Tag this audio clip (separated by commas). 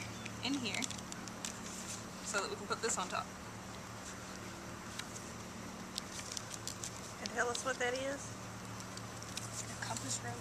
Speech